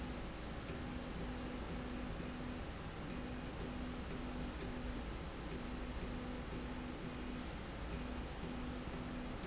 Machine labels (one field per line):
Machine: slide rail